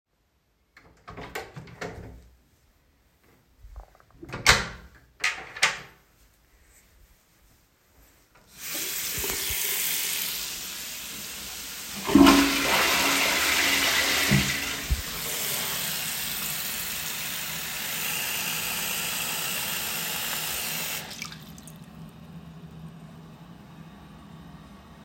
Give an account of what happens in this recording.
I closed the door of the bathroom. Then I flushed the toilet while running water from the sink.